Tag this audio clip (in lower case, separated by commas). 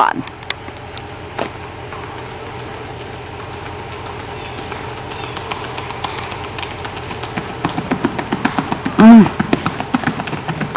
clip-clop, horse clip-clop, animal